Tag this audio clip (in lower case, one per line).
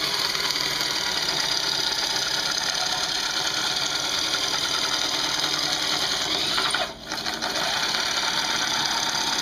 wood